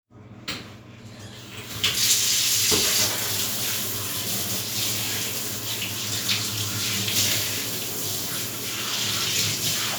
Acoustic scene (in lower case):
restroom